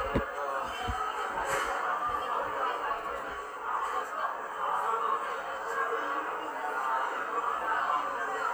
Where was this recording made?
in a cafe